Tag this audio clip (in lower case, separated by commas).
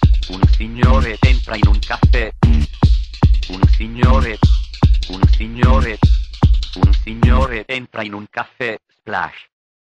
speech, music